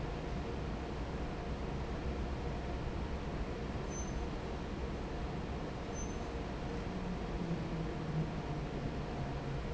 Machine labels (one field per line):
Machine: fan